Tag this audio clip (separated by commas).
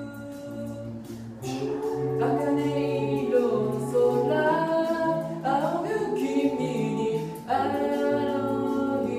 Music